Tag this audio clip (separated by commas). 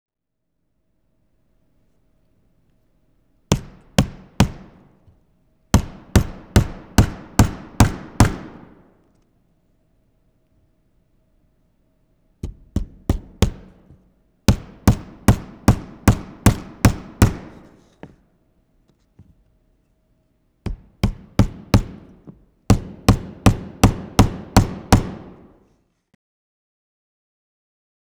Tools, Hammer